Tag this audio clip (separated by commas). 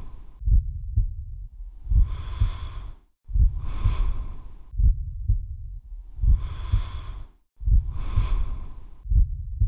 Snort